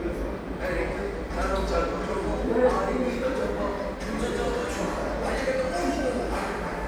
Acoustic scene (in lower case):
subway station